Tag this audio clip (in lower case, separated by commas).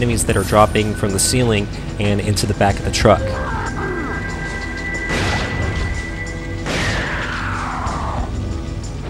music, speech